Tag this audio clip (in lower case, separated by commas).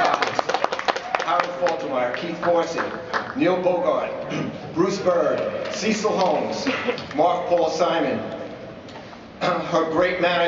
male speech, speech